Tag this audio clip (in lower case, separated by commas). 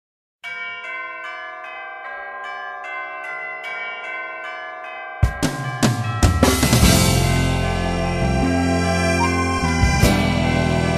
music